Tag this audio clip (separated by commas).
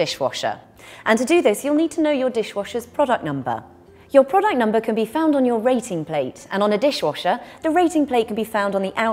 Speech